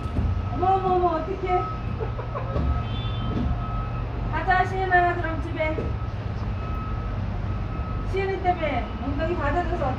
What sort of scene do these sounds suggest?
residential area